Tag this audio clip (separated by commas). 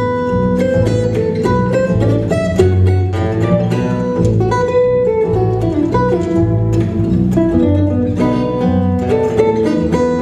Flamenco, Music, Guitar, Musical instrument